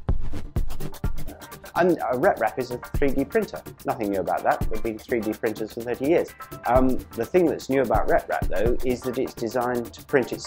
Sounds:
speech
music

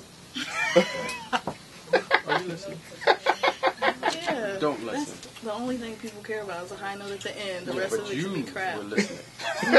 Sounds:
inside a large room or hall
speech

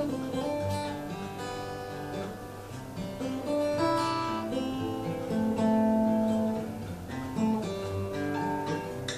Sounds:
music
acoustic guitar
playing acoustic guitar

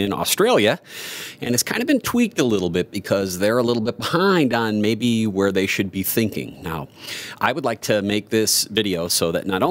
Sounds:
speech

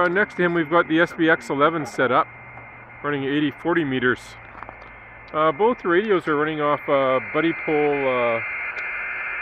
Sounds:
speech

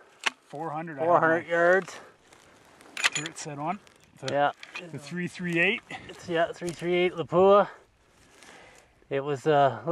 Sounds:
speech

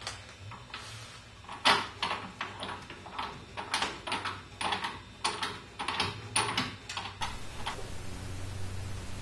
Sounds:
speech

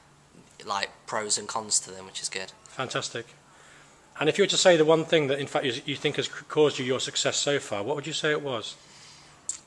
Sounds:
speech

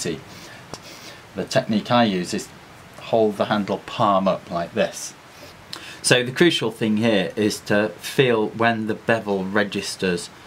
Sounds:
speech

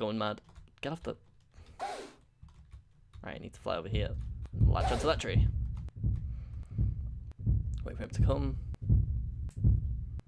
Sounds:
outside, rural or natural
speech

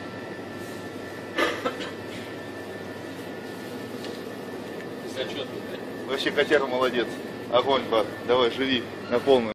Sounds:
speech

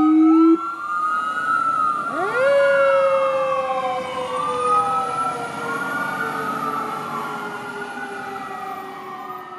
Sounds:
fire truck siren

